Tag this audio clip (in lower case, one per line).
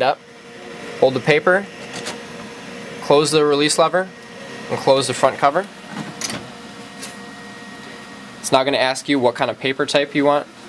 printer
speech